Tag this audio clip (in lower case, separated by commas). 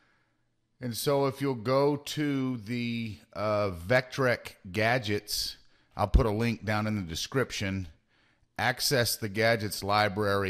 speech